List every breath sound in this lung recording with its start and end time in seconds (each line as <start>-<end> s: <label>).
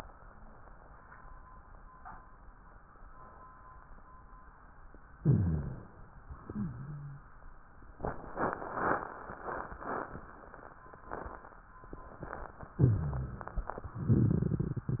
5.18-6.03 s: inhalation
5.18-6.03 s: rhonchi
6.21-7.26 s: wheeze
12.74-13.55 s: inhalation
12.74-13.55 s: rhonchi